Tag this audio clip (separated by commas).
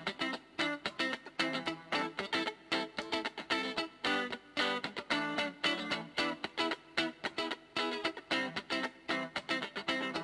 Guitar, Music, Plucked string instrument, Electric guitar, Musical instrument